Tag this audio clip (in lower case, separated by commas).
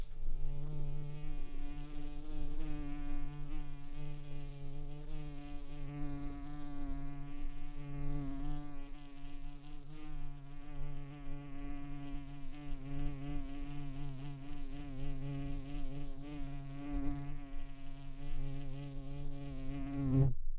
animal, buzz, insect, wild animals